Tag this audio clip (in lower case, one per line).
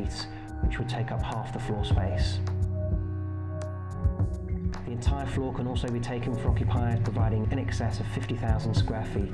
music
speech